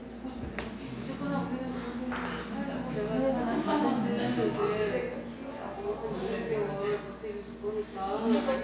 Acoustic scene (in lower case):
cafe